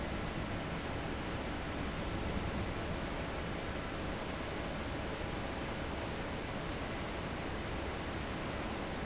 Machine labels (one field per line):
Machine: fan